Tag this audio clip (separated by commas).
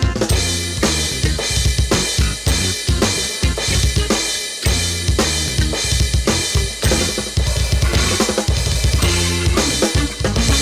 playing bass drum